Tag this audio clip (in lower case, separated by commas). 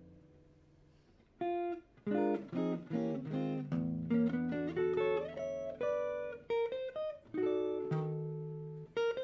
electric guitar, music, musical instrument, plucked string instrument, acoustic guitar